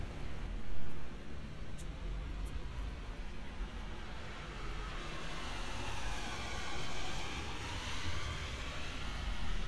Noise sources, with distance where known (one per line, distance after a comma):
engine of unclear size, far